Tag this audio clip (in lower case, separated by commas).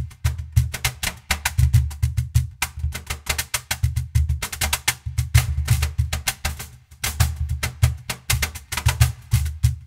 music